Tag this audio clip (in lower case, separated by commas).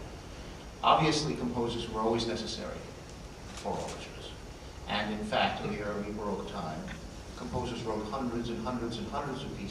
speech, monologue, male speech